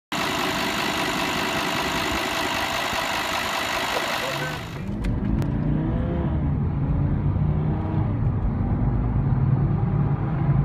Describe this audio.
Car engine is running then shuts off. Sounds of cars driving by